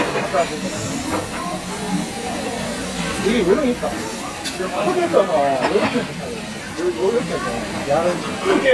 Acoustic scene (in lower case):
restaurant